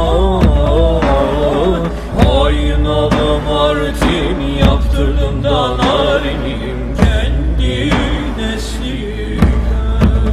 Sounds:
Music

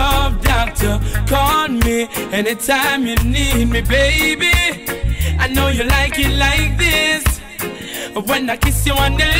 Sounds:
Music, Reggae, Music of Africa

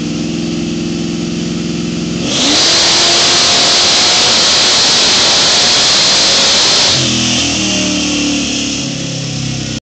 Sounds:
Vehicle, Car, Engine, Accelerating, Medium engine (mid frequency), Idling

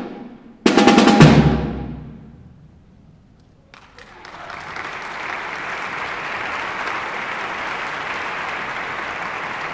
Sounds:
Musical instrument, Drum, Snare drum, Drum kit, Music

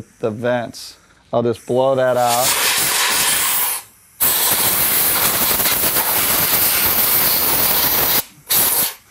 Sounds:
Speech, Steam

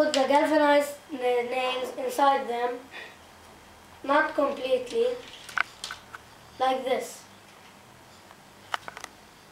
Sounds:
Speech

